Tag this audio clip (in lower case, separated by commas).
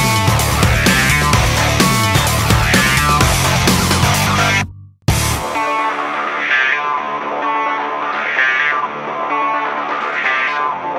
music